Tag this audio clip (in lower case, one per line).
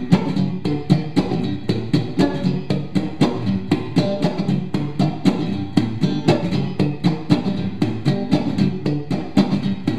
music
guitar
musical instrument
plucked string instrument
electric guitar